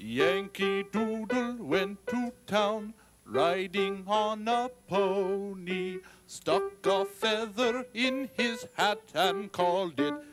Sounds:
Music

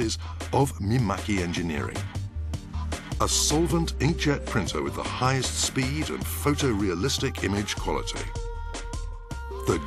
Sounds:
Speech, Music

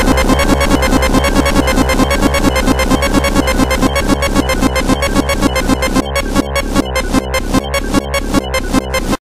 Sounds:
Music

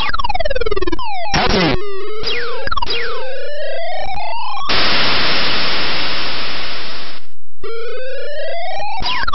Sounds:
White noise

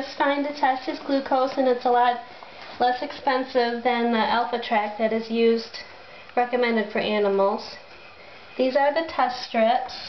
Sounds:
Speech

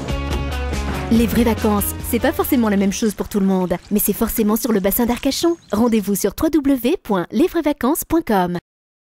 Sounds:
Speech, Rowboat, Boat, Music, Vehicle

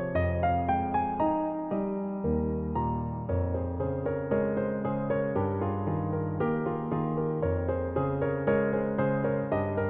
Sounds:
Music

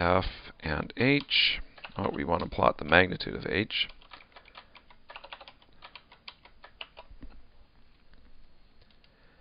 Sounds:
Typing, Speech

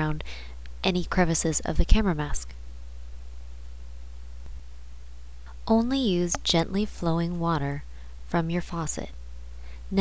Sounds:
Speech

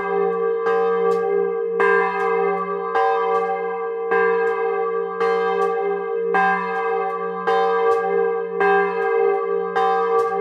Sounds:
church bell ringing

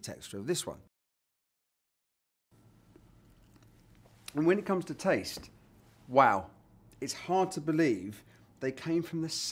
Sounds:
Speech

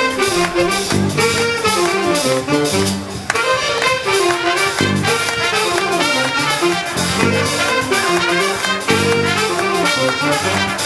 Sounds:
Jazz, Music

